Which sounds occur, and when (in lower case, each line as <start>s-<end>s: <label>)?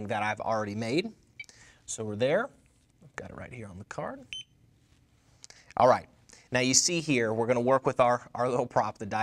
0.0s-9.2s: background noise
4.3s-4.5s: bleep